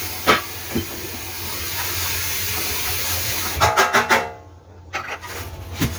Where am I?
in a kitchen